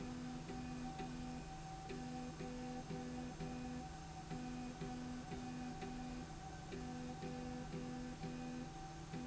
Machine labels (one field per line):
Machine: slide rail